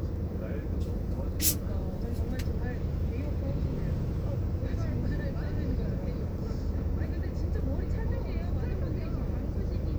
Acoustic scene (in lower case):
car